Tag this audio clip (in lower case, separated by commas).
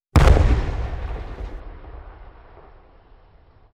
explosion